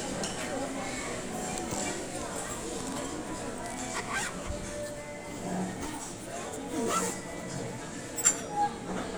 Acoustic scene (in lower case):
restaurant